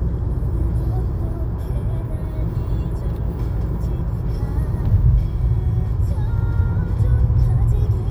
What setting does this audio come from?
car